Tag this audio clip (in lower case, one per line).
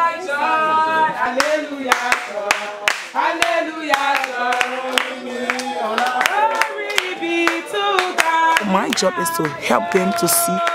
speech